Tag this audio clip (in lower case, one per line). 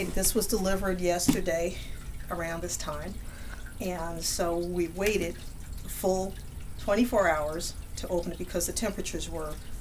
speech